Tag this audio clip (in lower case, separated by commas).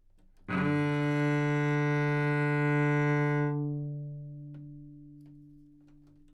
musical instrument, music, bowed string instrument